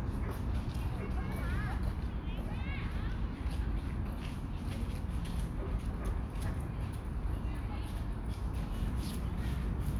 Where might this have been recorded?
in a park